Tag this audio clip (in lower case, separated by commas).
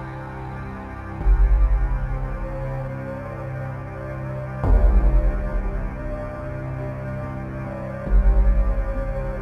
music